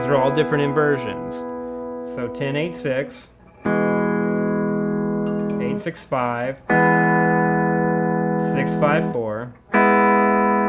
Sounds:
slide guitar

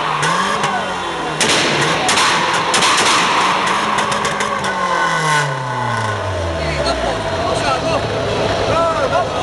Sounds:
Speech, Motor vehicle (road), Car, Vehicle

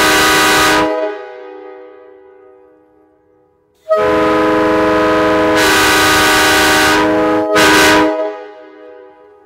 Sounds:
train horning

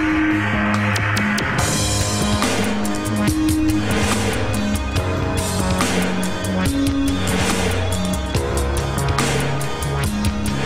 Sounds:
Music

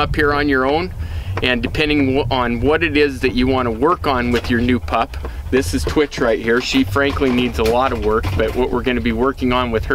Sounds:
Speech

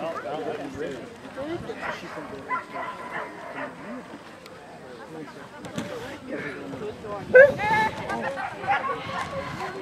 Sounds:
Speech, Bow-wow

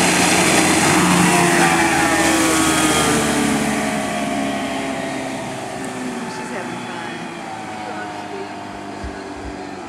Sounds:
speedboat, Vehicle, Speech, Water vehicle

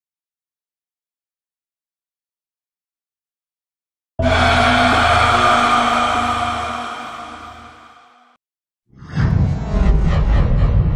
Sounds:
Music

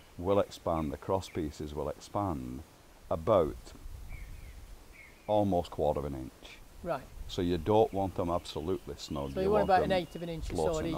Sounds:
Speech

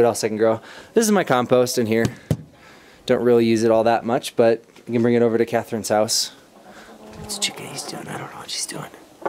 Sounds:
Chicken, Speech, Bird, outside, urban or man-made

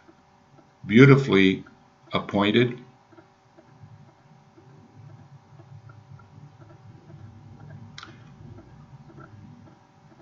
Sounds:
Speech

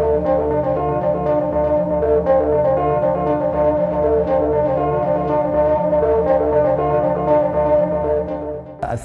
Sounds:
Speech, Music, inside a large room or hall

